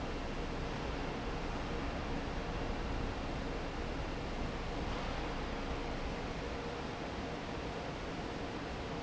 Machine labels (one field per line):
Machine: fan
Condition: normal